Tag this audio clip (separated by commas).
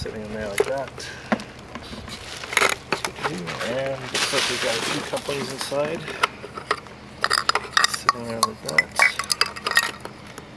Chink, Speech, outside, rural or natural